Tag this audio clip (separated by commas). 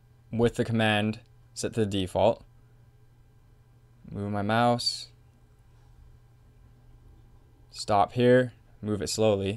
Speech